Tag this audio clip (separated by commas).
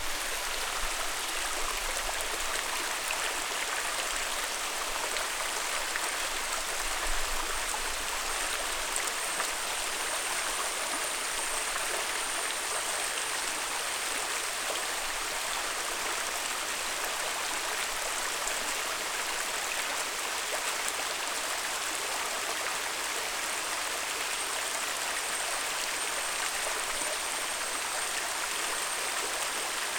Stream, Water